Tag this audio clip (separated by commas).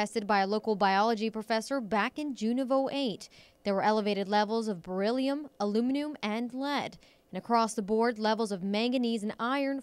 Speech